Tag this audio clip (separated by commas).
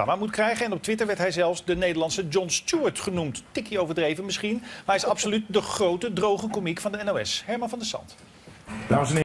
Speech